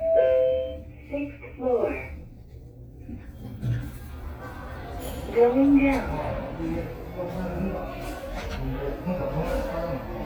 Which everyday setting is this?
elevator